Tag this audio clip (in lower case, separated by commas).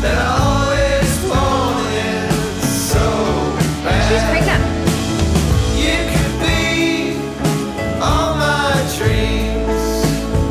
music, independent music